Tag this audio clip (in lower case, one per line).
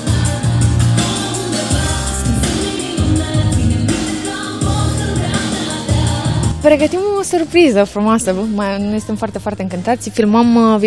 speech
soundtrack music
music